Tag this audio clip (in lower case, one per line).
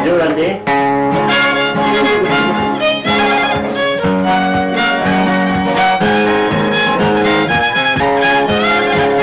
musical instrument
music
speech
violin